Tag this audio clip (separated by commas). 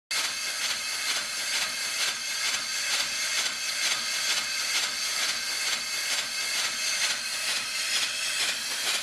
Engine